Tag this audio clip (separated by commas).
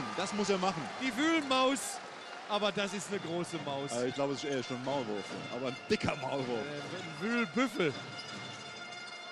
Music, Speech